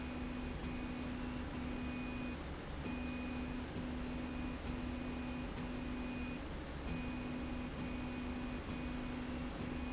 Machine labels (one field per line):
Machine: slide rail